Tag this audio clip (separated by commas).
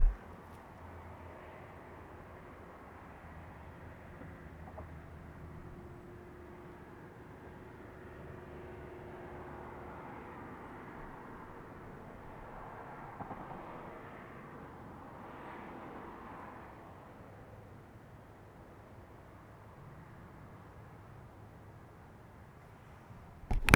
Traffic noise, Motor vehicle (road), Car, Vehicle, Car passing by